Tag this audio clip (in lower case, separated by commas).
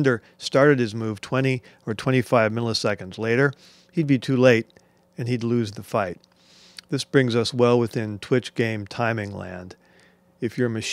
speech